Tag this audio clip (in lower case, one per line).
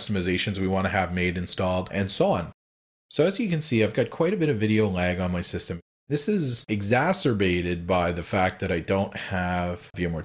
speech